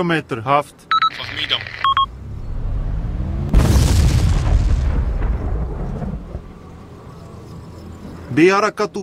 A man speaking and then a machine beeping